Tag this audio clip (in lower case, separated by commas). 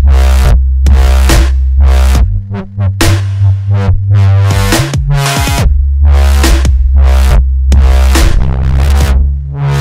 dubstep, music, electronic music